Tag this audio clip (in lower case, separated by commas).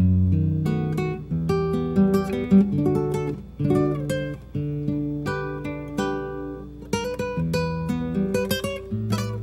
acoustic guitar, music, musical instrument, guitar